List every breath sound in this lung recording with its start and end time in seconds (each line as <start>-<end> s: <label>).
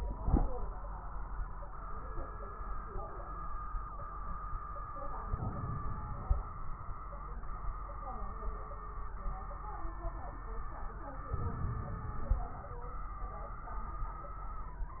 5.28-6.46 s: inhalation
5.28-6.46 s: crackles
11.34-12.52 s: inhalation
11.34-12.52 s: crackles